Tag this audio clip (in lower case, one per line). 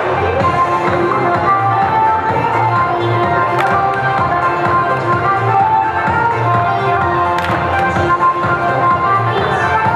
music
sampler